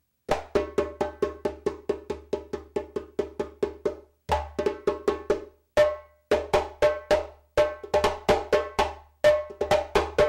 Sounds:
Wood block

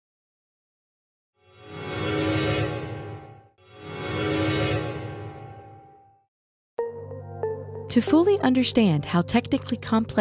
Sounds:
Music, Speech

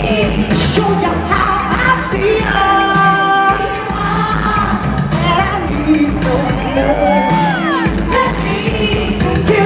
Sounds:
Music

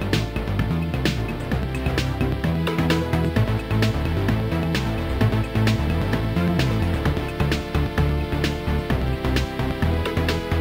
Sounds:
Background music, Music

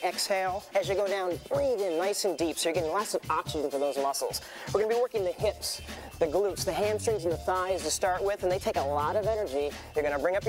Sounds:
Music, Speech

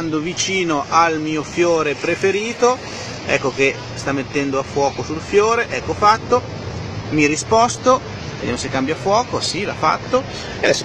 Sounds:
Speech

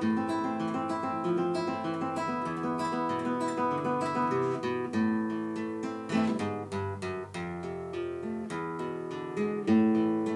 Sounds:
Musical instrument, Acoustic guitar, Plucked string instrument, Music, Guitar

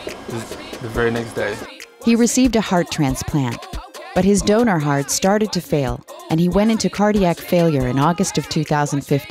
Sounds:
Speech, Music

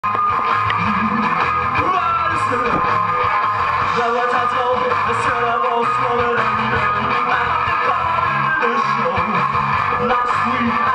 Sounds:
Music, Rock music

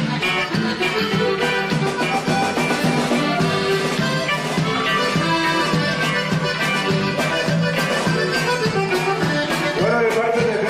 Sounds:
Drum kit, Accordion, Musical instrument, Speech, Music

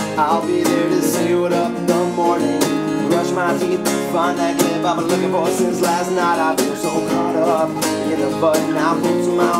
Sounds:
Music

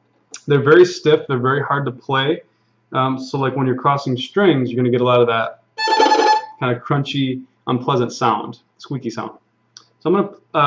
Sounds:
Musical instrument, Speech, fiddle, Music

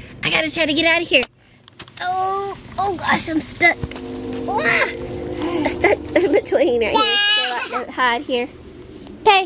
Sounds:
Babbling, Speech, people babbling

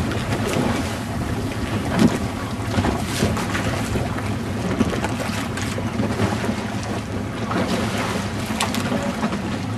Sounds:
Rowboat, Wind noise (microphone), canoe, Water vehicle, Wind

